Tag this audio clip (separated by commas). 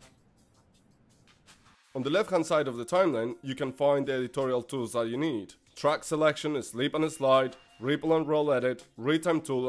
Speech